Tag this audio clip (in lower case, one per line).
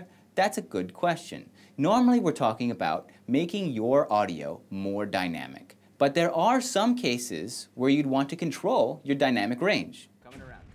speech